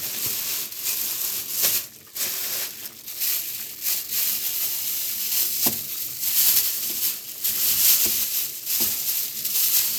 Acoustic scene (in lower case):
kitchen